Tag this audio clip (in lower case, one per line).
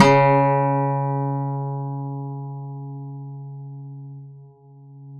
acoustic guitar
musical instrument
plucked string instrument
music
guitar